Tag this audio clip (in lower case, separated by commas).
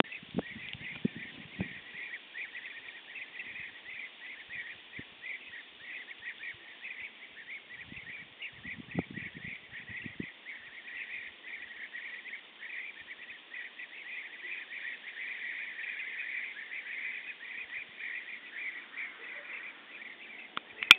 wild animals, bird, animal, bird song